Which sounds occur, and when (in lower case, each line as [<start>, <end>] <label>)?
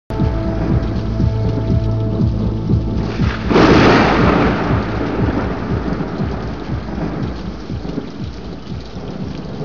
[0.06, 9.64] rain
[0.07, 9.64] music
[2.91, 9.64] thunder